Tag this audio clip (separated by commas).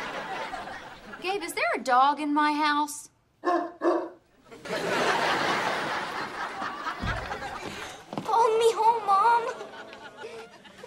Speech, kid speaking, inside a small room